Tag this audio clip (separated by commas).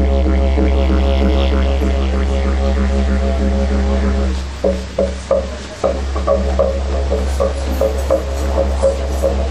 playing didgeridoo